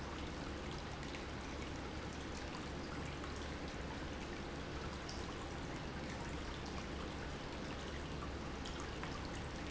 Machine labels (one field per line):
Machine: pump